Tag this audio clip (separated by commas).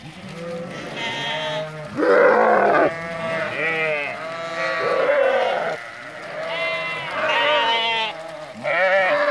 livestock, Sheep, Animal